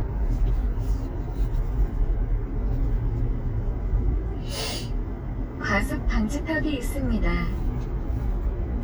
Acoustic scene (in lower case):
car